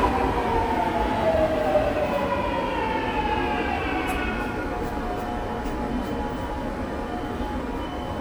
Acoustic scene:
subway station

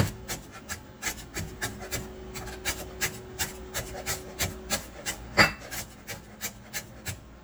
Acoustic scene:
kitchen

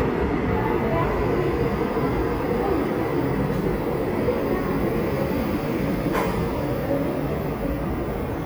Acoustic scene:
subway station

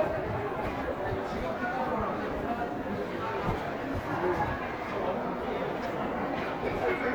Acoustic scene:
crowded indoor space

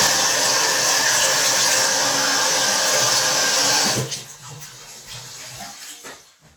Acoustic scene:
restroom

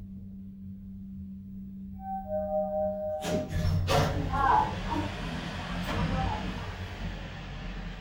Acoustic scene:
elevator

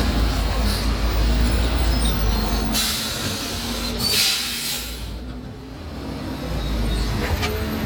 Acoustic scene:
street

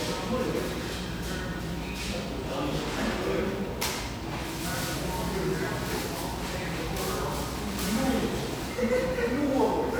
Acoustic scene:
cafe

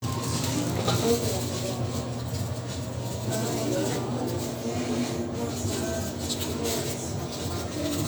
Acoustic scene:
restaurant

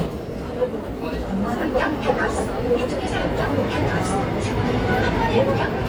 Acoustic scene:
subway station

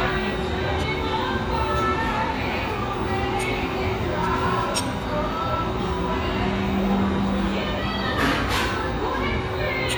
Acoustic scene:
restaurant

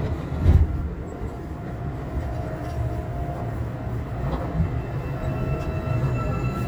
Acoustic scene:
subway train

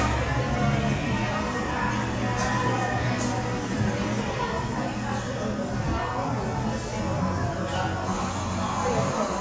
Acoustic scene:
cafe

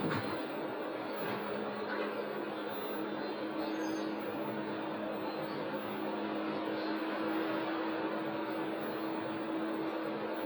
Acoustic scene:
bus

